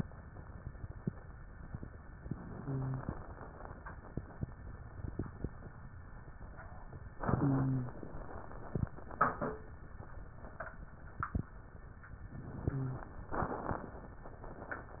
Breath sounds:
2.27-3.27 s: inhalation
2.49-3.17 s: wheeze
7.18-8.02 s: inhalation
7.18-8.02 s: wheeze
12.35-13.29 s: inhalation
12.49-13.15 s: wheeze

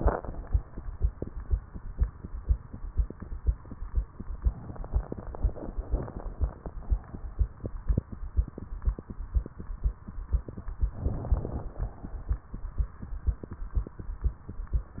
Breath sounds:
4.42-5.67 s: inhalation
5.67-6.66 s: exhalation
10.95-11.94 s: inhalation

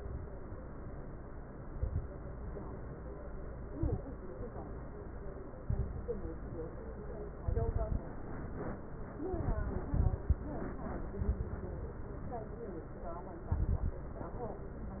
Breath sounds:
1.59-2.09 s: inhalation
1.59-2.09 s: crackles
3.69-4.06 s: inhalation
3.69-4.06 s: crackles
5.64-6.27 s: inhalation
5.64-6.27 s: crackles
7.41-8.04 s: inhalation
7.41-8.04 s: crackles
9.35-10.39 s: inhalation
9.35-10.39 s: crackles
11.17-11.55 s: inhalation
11.17-11.55 s: crackles
13.53-14.00 s: inhalation
13.53-14.00 s: crackles

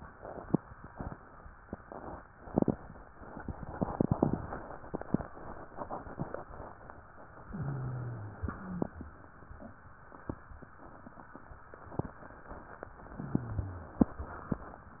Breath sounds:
7.50-8.35 s: wheeze
7.50-8.45 s: inhalation
8.37-8.63 s: wheeze
8.39-8.77 s: exhalation
13.12-13.97 s: inhalation
13.12-13.97 s: wheeze
14.05-14.60 s: exhalation

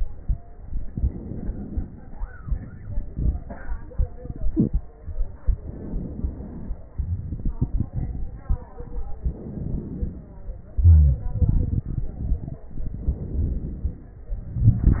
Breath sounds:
0.89-2.17 s: inhalation
2.36-4.48 s: exhalation
2.36-4.48 s: crackles
5.55-6.96 s: inhalation
7.25-9.07 s: exhalation
7.25-9.07 s: crackles
9.22-10.38 s: inhalation
10.78-11.24 s: wheeze
11.34-12.68 s: exhalation
12.73-14.30 s: inhalation
14.38-15.00 s: exhalation
14.38-15.00 s: crackles

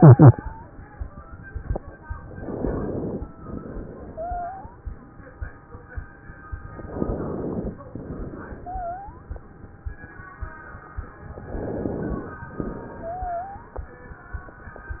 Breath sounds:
0.00-0.68 s: wheeze
2.28-3.30 s: inhalation
3.38-4.84 s: exhalation
4.08-4.84 s: wheeze
6.72-7.78 s: inhalation
7.86-9.28 s: exhalation
8.58-9.28 s: wheeze
11.42-12.46 s: inhalation
12.56-13.80 s: exhalation
13.04-13.80 s: wheeze

